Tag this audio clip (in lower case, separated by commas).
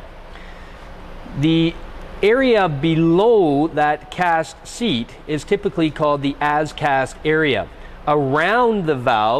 speech